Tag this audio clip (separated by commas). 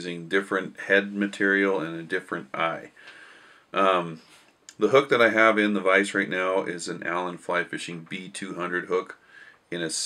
Speech